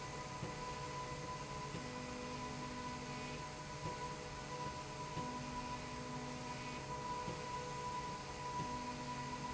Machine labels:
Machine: slide rail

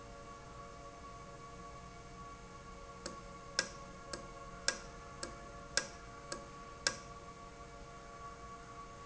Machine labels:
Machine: valve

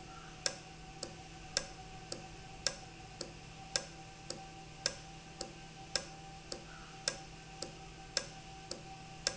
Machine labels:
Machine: valve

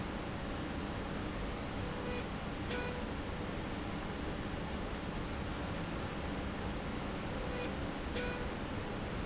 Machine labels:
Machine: slide rail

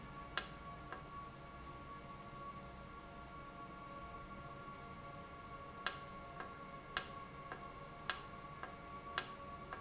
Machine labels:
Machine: valve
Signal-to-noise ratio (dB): 6 dB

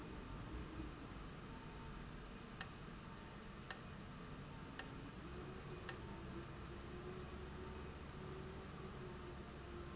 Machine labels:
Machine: valve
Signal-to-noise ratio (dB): 6 dB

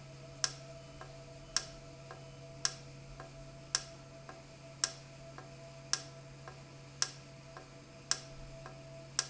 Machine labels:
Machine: valve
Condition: normal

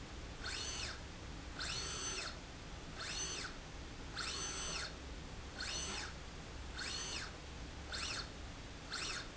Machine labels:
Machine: slide rail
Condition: normal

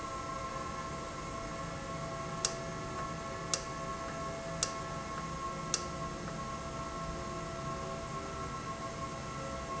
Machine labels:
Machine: valve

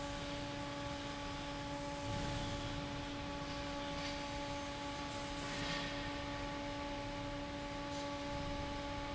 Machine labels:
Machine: fan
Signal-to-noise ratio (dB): 0 dB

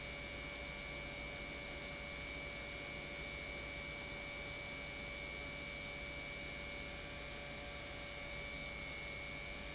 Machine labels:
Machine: pump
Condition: normal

